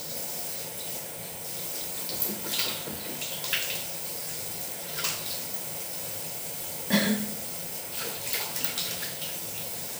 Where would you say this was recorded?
in a restroom